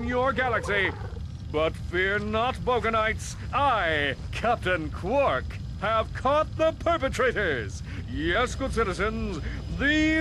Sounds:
speech

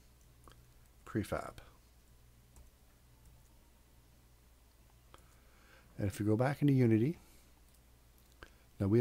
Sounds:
speech
inside a small room

